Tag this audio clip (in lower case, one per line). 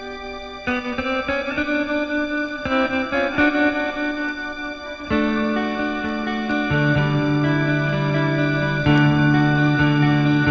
music